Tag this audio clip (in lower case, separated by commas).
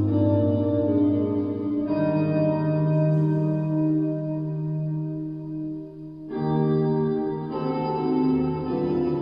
music, guitar